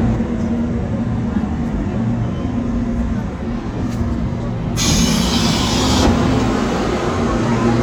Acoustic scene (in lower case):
subway train